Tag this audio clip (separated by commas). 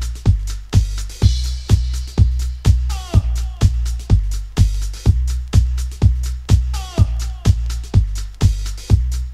Music